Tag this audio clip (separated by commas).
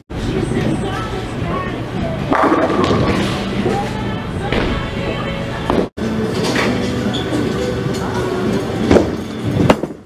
striking bowling